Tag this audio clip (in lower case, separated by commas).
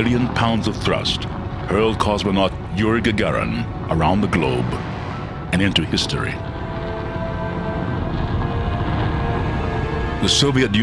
speech